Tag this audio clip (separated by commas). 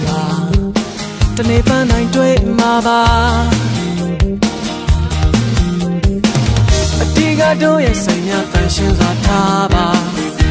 Music, Dance music, Happy music